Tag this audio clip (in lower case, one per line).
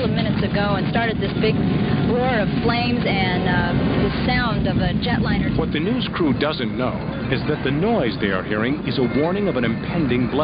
speech